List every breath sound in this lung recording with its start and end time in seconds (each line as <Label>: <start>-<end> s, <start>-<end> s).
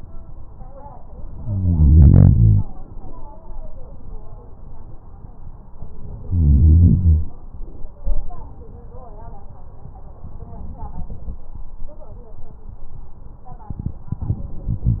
No breath sounds were labelled in this clip.